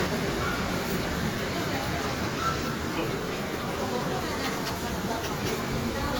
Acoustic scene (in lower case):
subway station